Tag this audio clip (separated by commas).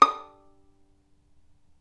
Music, Musical instrument, Bowed string instrument